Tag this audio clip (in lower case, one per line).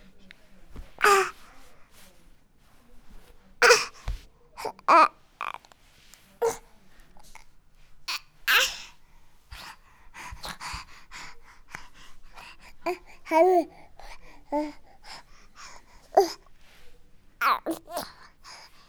speech
human voice